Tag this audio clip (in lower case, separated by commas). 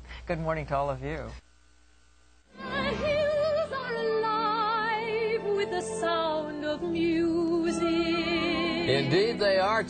music, speech